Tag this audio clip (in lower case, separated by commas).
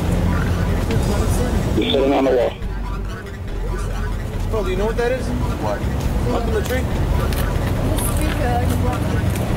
music, speech, outside, urban or man-made